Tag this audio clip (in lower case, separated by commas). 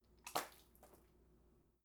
splatter, liquid